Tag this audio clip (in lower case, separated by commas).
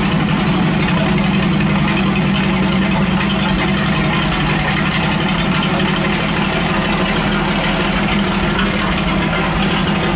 engine, idling